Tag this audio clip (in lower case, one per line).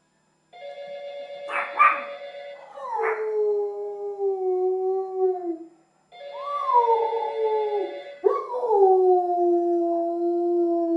bark
animal
dog
domestic animals
canids